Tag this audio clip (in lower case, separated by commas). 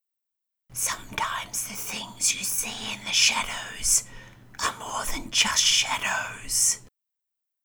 whispering, human voice